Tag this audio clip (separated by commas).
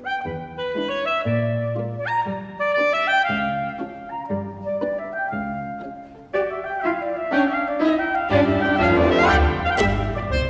Music